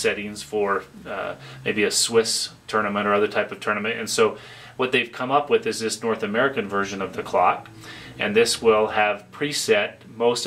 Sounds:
speech

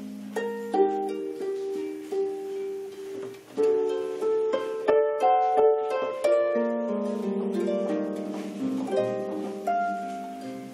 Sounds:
playing harp

